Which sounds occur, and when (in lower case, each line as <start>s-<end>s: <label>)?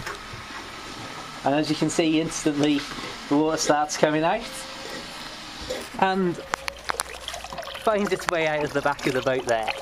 0.0s-9.8s: mechanisms
2.3s-2.4s: human voice
2.6s-2.7s: tick
6.4s-9.8s: dribble
8.3s-8.3s: generic impact sounds
9.1s-9.8s: man speaking